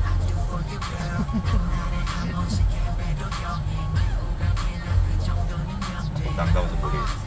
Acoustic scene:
car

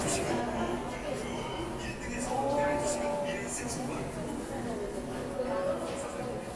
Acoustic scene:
subway station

